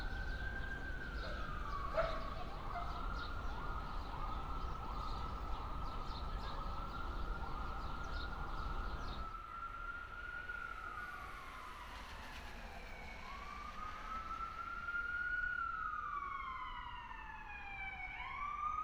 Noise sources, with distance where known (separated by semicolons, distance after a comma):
siren